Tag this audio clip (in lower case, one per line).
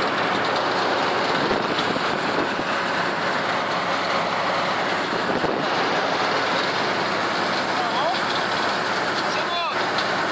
speech